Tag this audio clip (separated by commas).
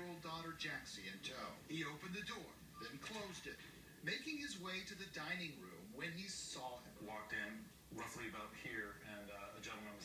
Speech